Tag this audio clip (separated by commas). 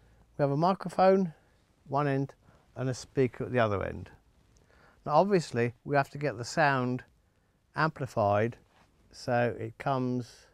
Speech